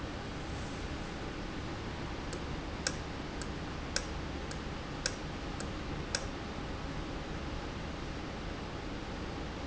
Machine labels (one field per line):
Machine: valve